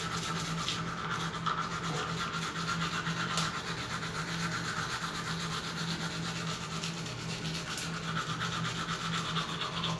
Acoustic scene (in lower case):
restroom